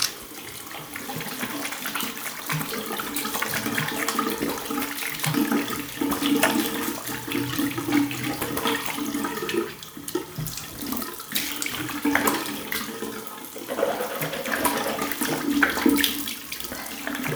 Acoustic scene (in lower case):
restroom